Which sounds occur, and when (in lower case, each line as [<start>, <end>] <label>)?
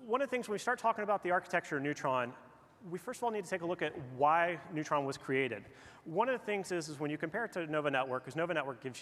[0.00, 9.01] background noise
[0.04, 2.31] male speech
[2.80, 5.62] male speech
[6.05, 9.01] male speech